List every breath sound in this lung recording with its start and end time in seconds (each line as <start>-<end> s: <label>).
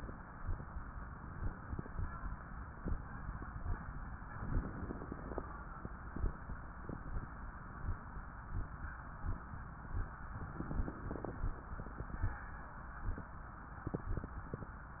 4.50-5.43 s: inhalation
4.50-5.43 s: crackles
10.49-11.42 s: inhalation
10.49-11.42 s: crackles